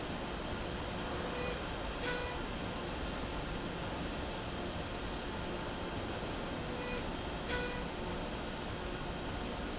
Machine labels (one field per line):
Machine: slide rail